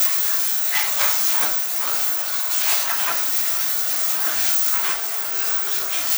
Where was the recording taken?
in a restroom